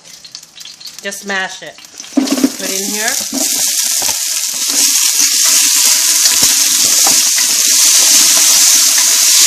Liquid popping and crackling are present, an adult female speaks, and dull thumps occur followed by sizzling